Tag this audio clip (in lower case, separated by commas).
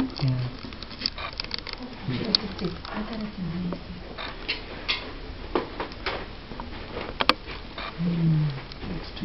inside a large room or hall, speech